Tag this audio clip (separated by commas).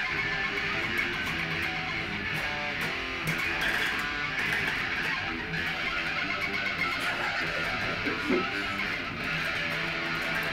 Music, Electric guitar, Strum, Musical instrument, Plucked string instrument, Guitar